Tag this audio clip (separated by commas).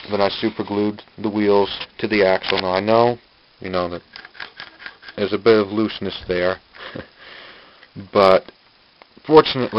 Speech